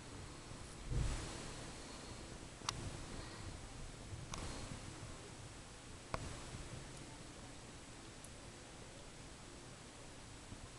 A faint ticking or tapping noise